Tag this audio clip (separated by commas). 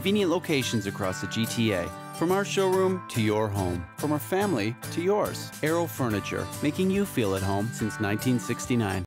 Music, Speech